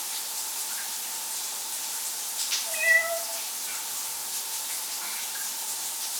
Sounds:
Meow, pets, Cat, Water, Animal, Bathtub (filling or washing), home sounds

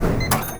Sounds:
Mechanisms

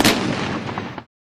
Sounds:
Explosion, Gunshot

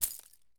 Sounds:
Keys jangling, Domestic sounds

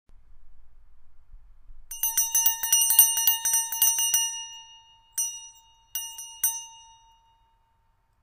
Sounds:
Bell

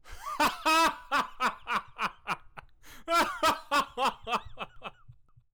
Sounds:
Laughter, Human voice

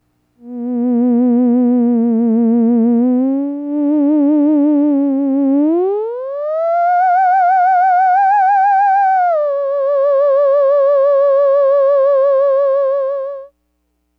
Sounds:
Musical instrument, Music

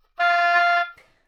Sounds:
Musical instrument, woodwind instrument, Music

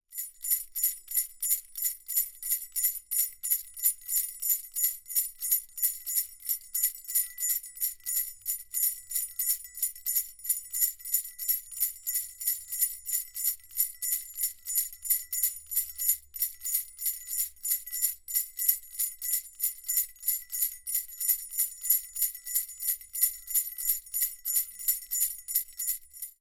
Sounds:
Bell

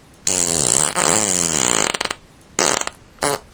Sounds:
Fart

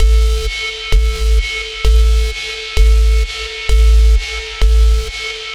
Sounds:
Alarm

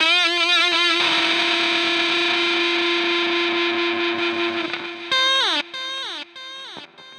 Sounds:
Guitar, Musical instrument, Plucked string instrument, Music

